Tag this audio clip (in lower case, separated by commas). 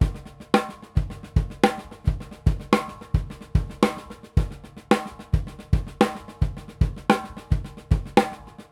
drum, music, percussion, drum kit, musical instrument